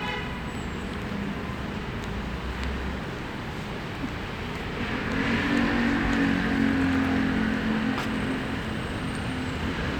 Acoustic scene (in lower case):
street